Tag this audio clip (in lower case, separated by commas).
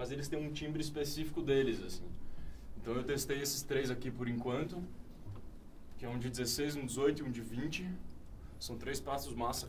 speech